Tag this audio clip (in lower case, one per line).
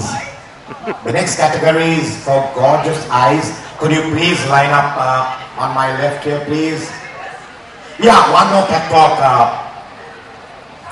speech